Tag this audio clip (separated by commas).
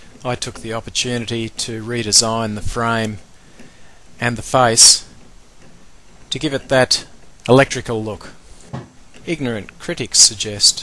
Speech